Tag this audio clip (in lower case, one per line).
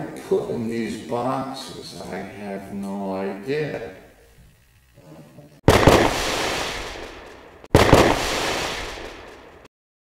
speech
firecracker
inside a small room